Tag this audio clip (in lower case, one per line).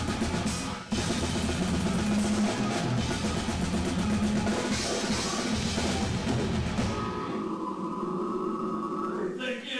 drum kit
rock music
heavy metal
music
speech
drum
musical instrument
cymbal